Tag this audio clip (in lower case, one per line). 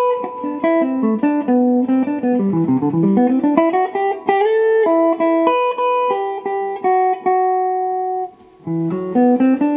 plucked string instrument
guitar
musical instrument
music